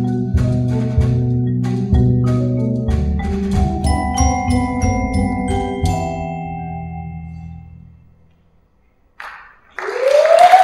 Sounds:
glockenspiel, music, musical instrument, percussion

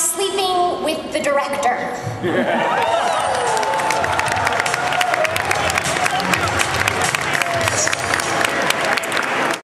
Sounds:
speech, music, female speech

